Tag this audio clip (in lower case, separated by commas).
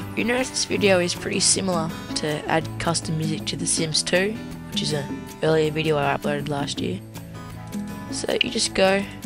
music, speech